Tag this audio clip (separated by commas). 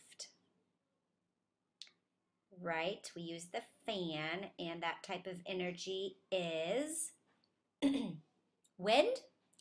Speech